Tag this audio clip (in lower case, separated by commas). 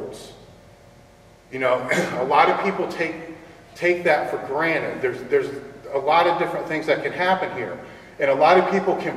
speech